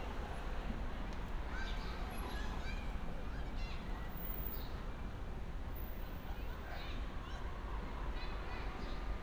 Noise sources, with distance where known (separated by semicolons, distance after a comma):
person or small group talking; person or small group shouting, far